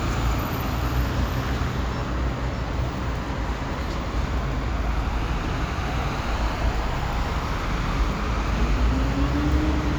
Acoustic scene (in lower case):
street